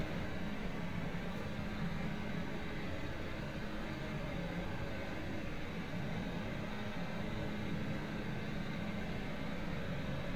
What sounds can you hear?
engine of unclear size